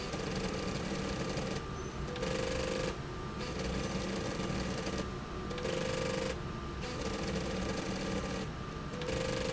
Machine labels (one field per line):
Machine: slide rail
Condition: abnormal